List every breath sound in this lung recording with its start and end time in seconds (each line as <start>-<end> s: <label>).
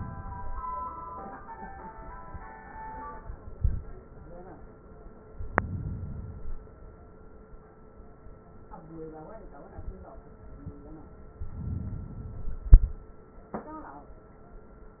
5.29-6.41 s: inhalation
6.40-7.67 s: exhalation
11.38-12.66 s: inhalation
12.62-13.64 s: exhalation